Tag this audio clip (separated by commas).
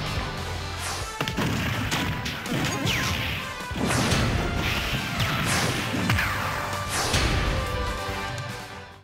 Music